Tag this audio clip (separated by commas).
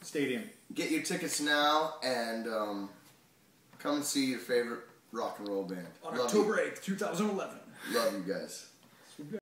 Speech